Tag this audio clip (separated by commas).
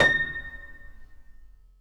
Keyboard (musical), Piano, Music, Musical instrument